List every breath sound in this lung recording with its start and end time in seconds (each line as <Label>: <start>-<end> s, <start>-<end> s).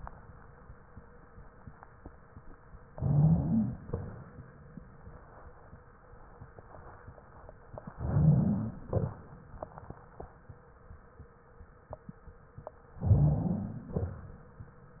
Inhalation: 2.91-3.83 s, 7.95-8.86 s, 13.01-13.90 s
Exhalation: 3.83-4.24 s, 8.88-9.20 s, 13.90-14.32 s
Wheeze: 2.91-3.83 s, 7.95-8.86 s, 13.01-13.90 s